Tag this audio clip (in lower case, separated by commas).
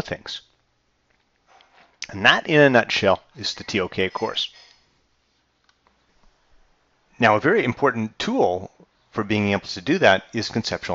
speech